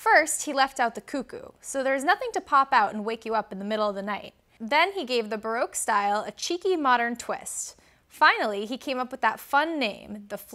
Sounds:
Speech

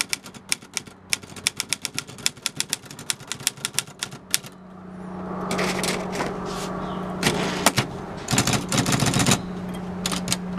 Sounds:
typing on typewriter

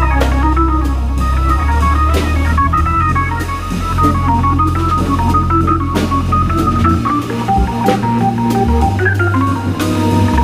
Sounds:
playing hammond organ

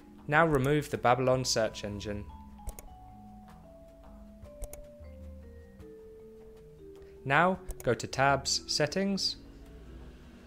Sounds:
Music, Speech

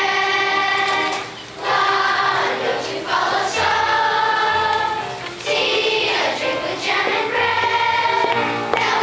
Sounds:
Choir, Music, singing choir, Synthetic singing

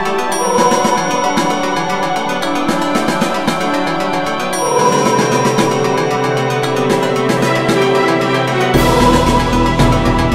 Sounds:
Music

